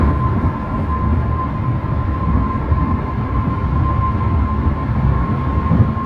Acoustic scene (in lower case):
car